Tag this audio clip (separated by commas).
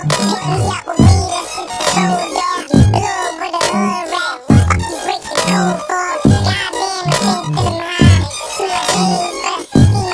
Music